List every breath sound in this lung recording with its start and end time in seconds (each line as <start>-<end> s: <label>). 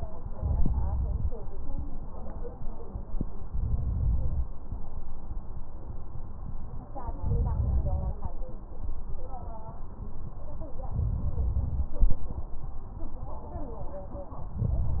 0.33-1.33 s: inhalation
3.50-4.50 s: inhalation
7.23-8.23 s: inhalation
7.23-8.23 s: crackles
10.92-11.93 s: inhalation
14.57-15.00 s: inhalation